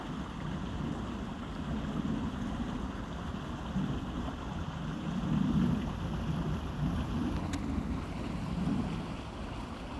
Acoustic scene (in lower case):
park